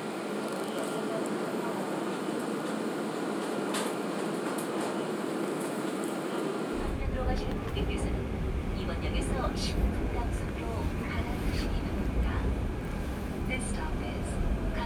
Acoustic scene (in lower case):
subway train